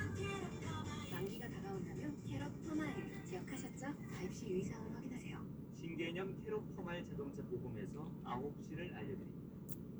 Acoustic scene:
car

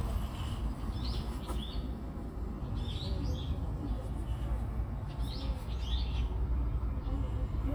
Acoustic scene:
park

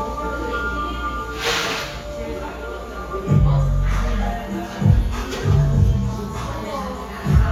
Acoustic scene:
cafe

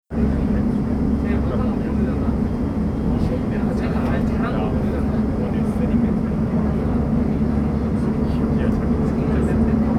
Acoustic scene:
subway train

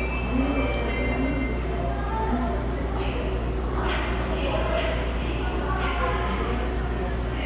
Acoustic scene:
subway station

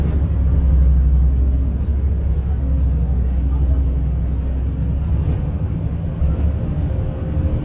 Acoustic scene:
bus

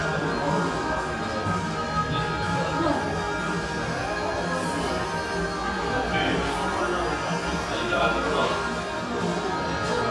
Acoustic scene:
cafe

